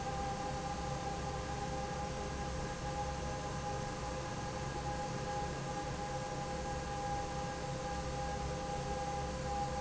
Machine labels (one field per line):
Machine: fan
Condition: normal